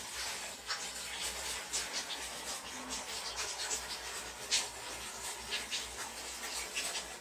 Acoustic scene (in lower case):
restroom